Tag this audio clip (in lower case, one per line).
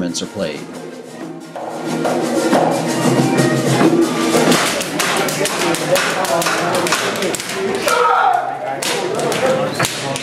speech
music